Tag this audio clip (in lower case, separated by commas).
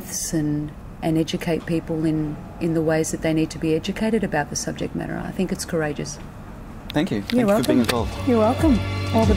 speech, music